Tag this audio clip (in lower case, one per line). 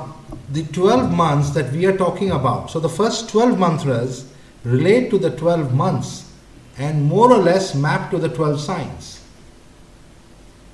speech